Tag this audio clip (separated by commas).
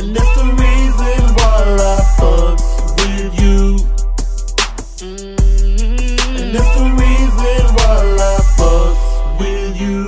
Pop music, Music, Rhythm and blues